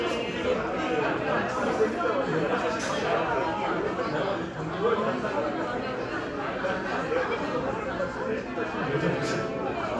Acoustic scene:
crowded indoor space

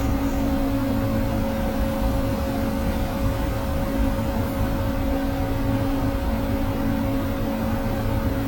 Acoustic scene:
bus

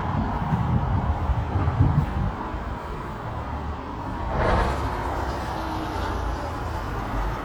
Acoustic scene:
street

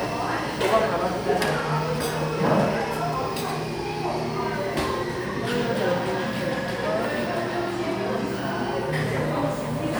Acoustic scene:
cafe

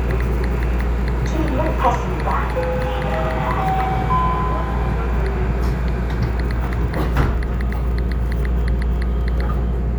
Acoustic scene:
subway train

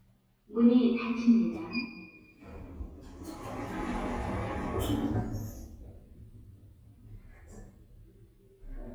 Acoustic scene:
elevator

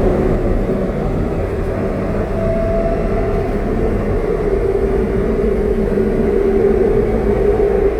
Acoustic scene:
subway train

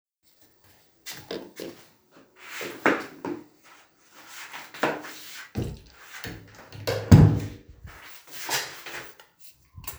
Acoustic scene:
restroom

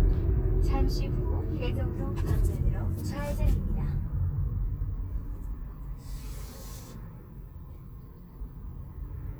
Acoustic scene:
car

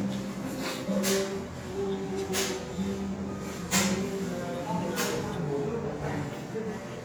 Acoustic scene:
restaurant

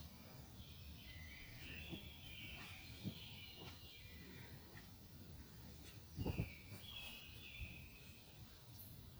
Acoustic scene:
park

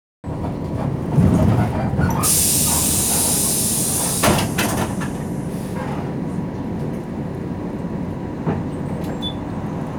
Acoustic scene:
bus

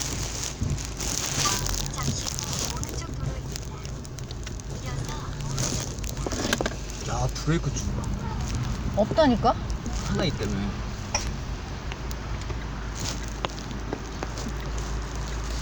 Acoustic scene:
car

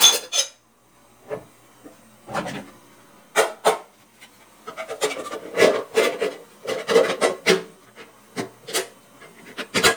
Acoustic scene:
kitchen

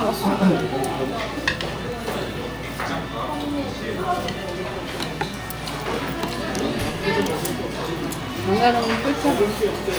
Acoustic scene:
restaurant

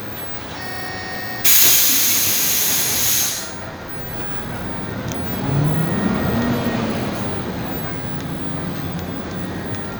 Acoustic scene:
bus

